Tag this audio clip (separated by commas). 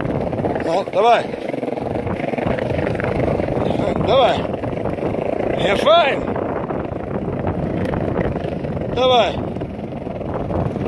skateboarding